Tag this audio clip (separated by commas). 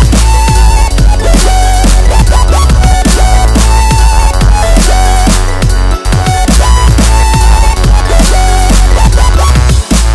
Drum and bass